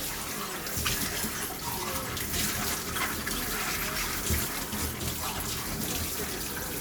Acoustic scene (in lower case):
kitchen